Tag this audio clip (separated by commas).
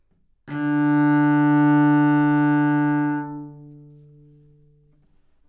Musical instrument, Music, Bowed string instrument